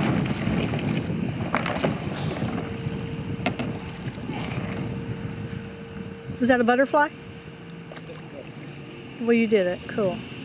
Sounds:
boat
wind noise (microphone)
kayak
wind

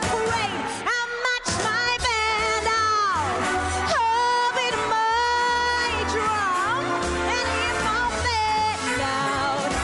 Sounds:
music

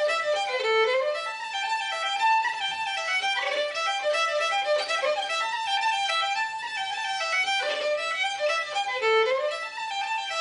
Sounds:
musical instrument
music
fiddle

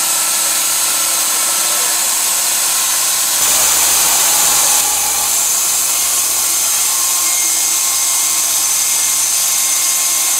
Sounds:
speech

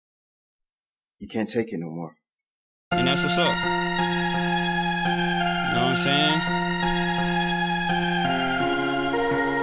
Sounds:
speech
music

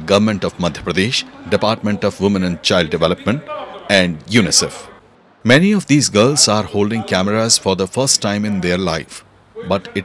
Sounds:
speech

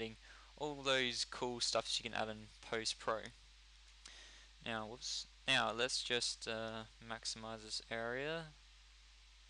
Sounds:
speech

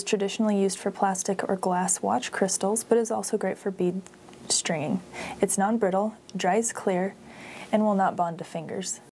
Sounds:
speech

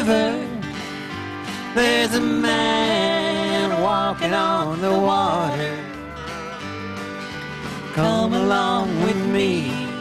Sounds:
music
gospel music

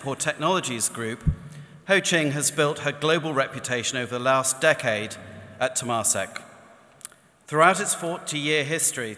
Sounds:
male speech
speech

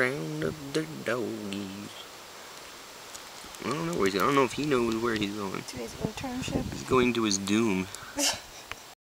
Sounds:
speech

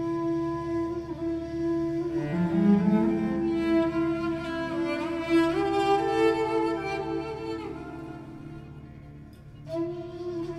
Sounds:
bowed string instrument
cello
double bass

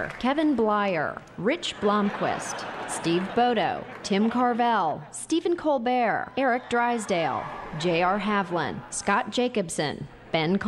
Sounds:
speech

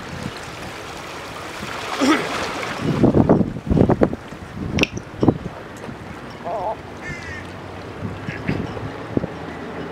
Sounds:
ocean

